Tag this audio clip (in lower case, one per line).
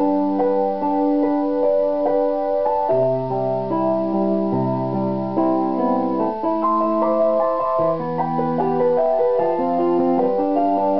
music
sampler